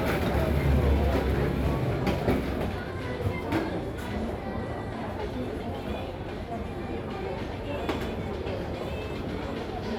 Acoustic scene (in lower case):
crowded indoor space